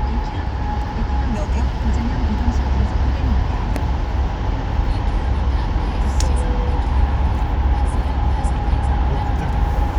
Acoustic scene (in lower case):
car